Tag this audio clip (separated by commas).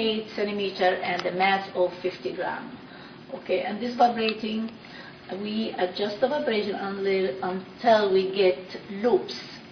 Speech, Female speech